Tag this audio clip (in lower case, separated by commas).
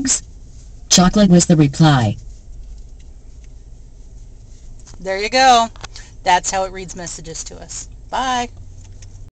speech